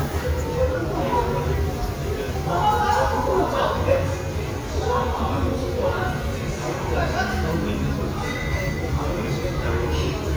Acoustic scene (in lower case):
restaurant